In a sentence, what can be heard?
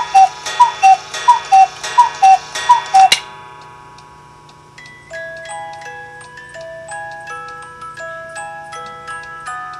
Ticking and ringing of a coo clock